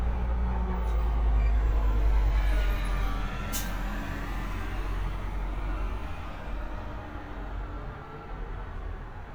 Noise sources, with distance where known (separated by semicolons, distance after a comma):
large-sounding engine